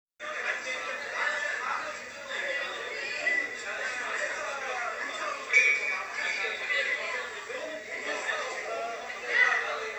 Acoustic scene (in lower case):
crowded indoor space